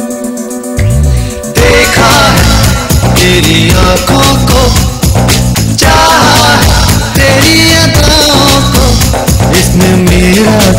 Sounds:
music, music of bollywood

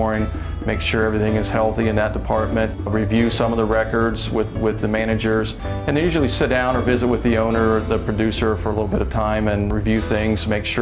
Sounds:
music, speech

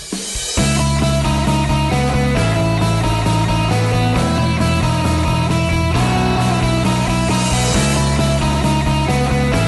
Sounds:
progressive rock

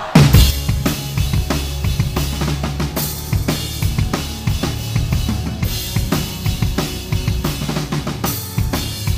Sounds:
playing bass drum, music, bass drum

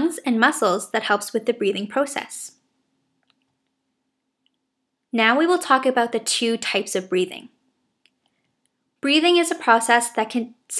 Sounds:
speech

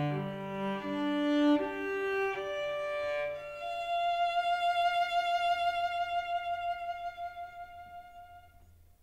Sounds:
bowed string instrument, double bass, cello

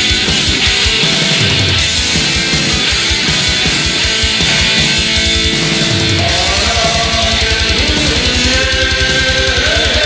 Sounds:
funk, music, pop music

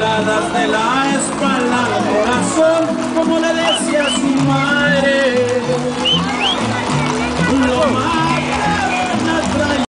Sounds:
clip-clop, music

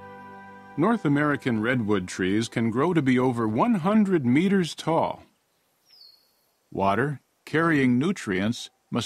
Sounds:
speech, music

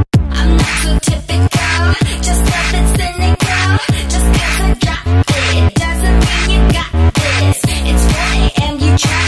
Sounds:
music

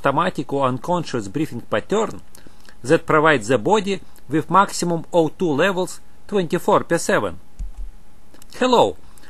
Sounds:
speech

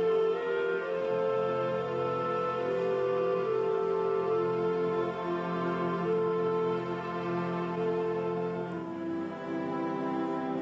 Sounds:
orchestra, music, musical instrument

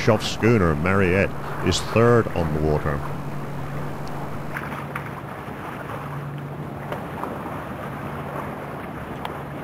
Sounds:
speech, vehicle, water vehicle, sailing ship

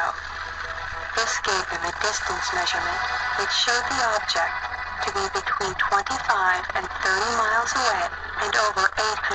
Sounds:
inside a small room, music, speech

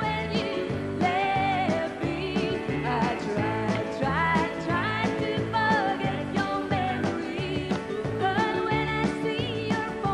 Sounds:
country, music

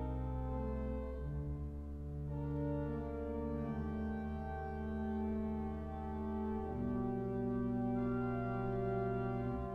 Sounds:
organ, hammond organ

